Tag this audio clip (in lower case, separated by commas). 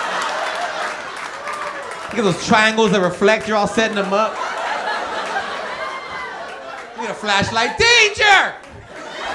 speech